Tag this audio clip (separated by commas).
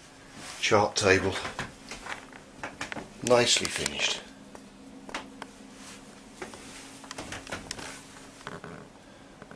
Speech